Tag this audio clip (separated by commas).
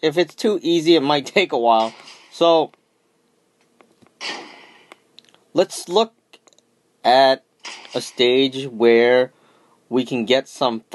Speech